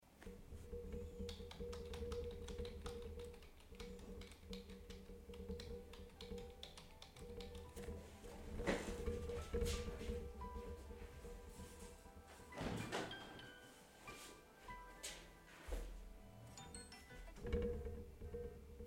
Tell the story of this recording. I was typing on the keyboard when my phone rang. I got up, closed the window to cut the street noise, then answered the call.